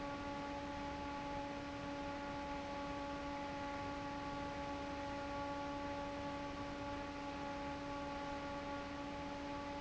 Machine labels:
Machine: fan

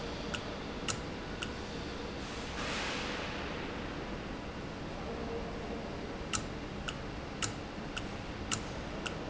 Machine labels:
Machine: valve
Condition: normal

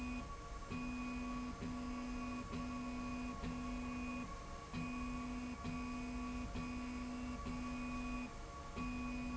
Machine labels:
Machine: slide rail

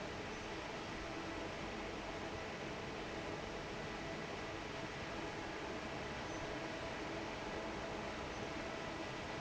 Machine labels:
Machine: fan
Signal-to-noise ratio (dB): 6 dB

